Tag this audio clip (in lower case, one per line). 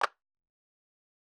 clapping
hands